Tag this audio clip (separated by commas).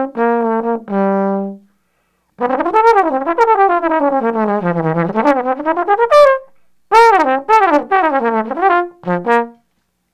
Trombone, Musical instrument, playing trombone, Music